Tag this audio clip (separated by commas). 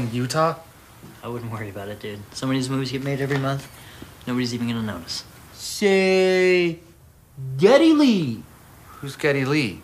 Speech